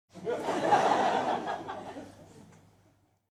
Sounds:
Laughter, Human voice, Crowd, Human group actions

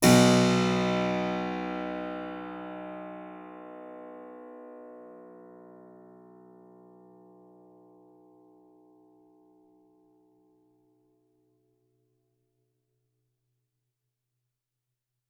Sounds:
Keyboard (musical), Musical instrument, Music

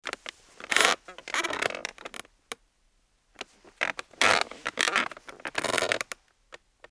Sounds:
Squeak

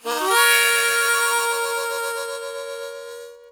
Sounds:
Music, Musical instrument, Harmonica

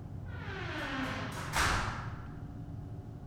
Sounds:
Door, Slam, Domestic sounds

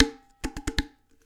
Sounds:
dishes, pots and pans, Domestic sounds

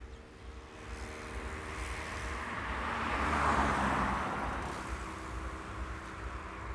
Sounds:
Motor vehicle (road), Car passing by, Car, Engine, Vehicle

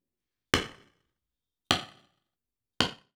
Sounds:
Tools, Hammer

